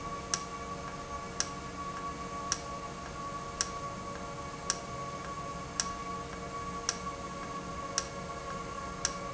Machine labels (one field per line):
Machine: valve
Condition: normal